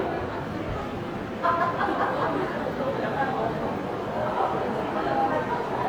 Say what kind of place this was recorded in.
crowded indoor space